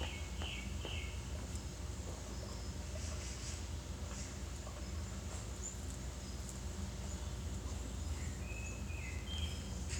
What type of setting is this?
park